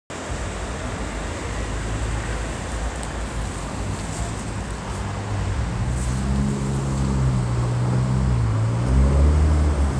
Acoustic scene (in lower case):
street